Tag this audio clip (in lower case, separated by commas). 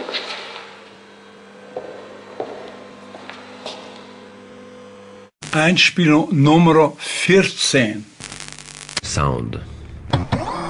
speech, radio